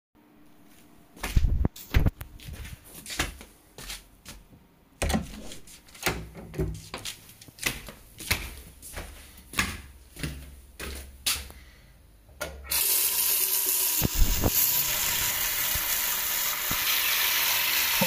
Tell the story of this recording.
I walked from my bedroom, thru hallway, to the bathroom to wash my hands